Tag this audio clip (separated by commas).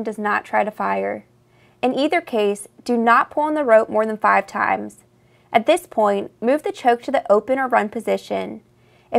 Speech